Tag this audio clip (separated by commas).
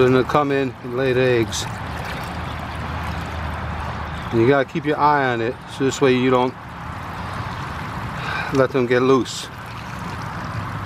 Speech